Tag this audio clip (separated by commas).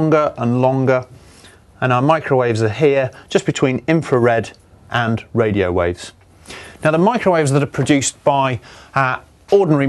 Speech